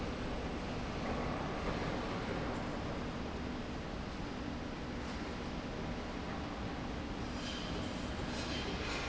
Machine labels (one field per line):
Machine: slide rail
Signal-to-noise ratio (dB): -6 dB